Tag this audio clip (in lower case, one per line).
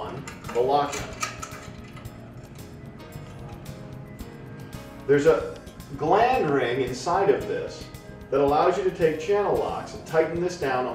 speech
music